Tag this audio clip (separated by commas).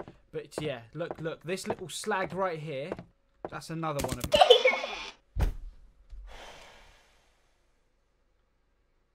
Silence, inside a small room, Speech